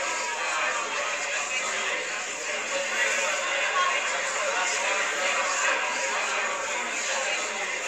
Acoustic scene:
crowded indoor space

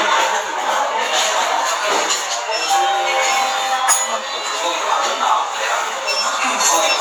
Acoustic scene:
restaurant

